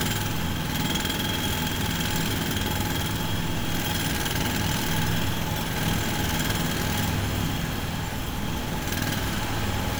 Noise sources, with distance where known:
unidentified impact machinery, near

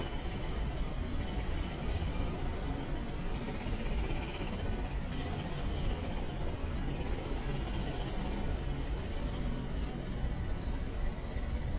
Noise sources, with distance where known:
jackhammer, near

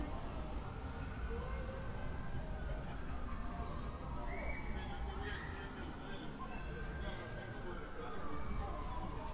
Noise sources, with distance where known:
unidentified human voice, far

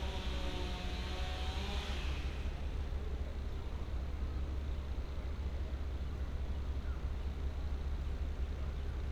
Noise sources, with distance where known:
unidentified powered saw

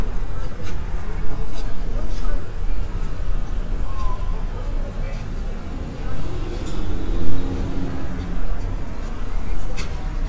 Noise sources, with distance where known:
medium-sounding engine, near
person or small group talking, near

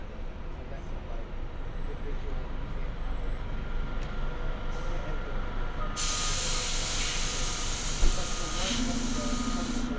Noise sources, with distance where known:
large-sounding engine, near
person or small group talking, far

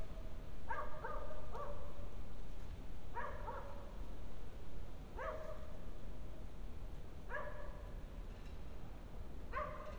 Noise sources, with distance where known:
dog barking or whining, far

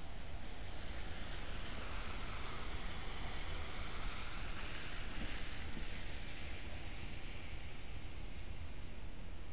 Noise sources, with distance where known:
medium-sounding engine

